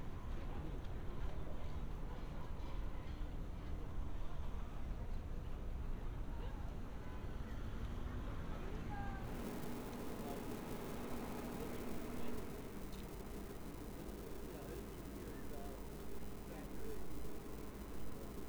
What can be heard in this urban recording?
unidentified human voice